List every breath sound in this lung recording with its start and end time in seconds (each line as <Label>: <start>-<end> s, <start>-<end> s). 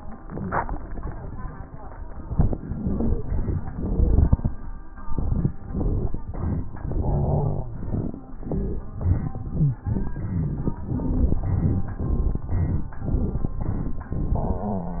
Wheeze: 7.01-7.88 s, 9.54-9.85 s, 14.36-14.98 s
Stridor: 3.75-4.30 s